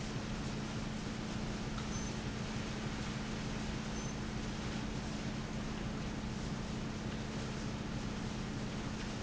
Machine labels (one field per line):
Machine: fan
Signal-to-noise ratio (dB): -6 dB